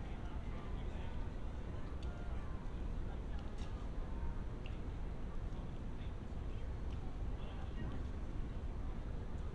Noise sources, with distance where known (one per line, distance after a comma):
background noise